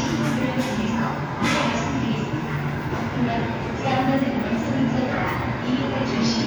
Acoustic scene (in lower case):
subway station